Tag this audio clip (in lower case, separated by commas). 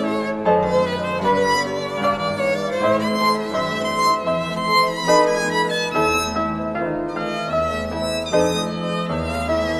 fiddle, musical instrument, music, bowed string instrument, piano